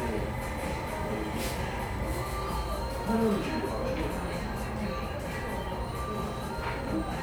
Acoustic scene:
cafe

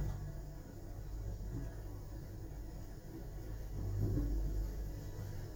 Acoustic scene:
elevator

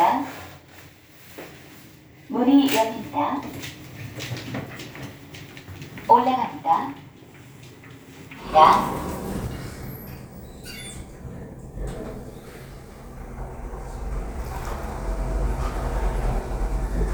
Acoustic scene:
elevator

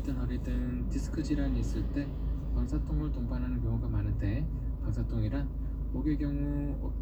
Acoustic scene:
car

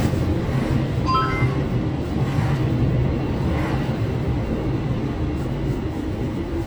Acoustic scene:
car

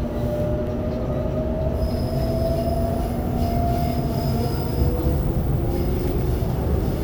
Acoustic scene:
subway train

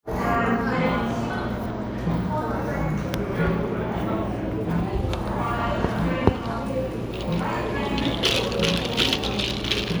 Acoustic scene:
cafe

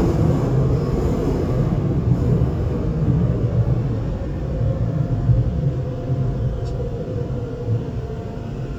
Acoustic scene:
subway train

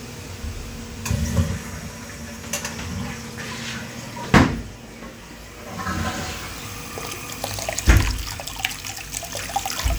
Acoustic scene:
restroom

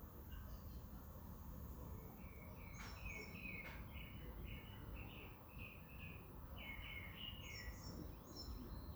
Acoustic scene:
park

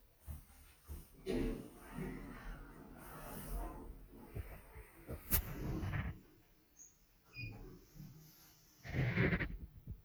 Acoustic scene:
elevator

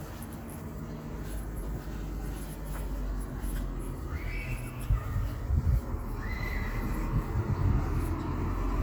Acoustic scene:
residential area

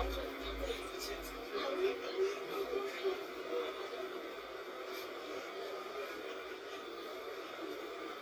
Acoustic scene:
bus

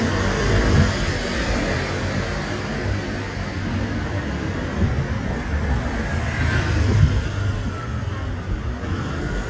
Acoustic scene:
street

